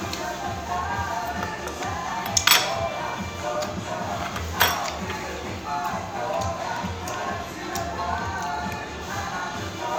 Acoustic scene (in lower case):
restaurant